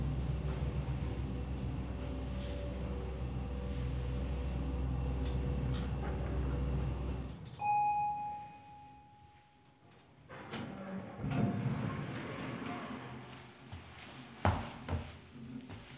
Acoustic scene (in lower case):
elevator